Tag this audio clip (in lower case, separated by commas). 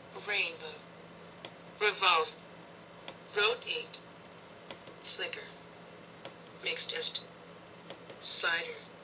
speech